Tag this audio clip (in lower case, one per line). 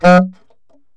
musical instrument
woodwind instrument
music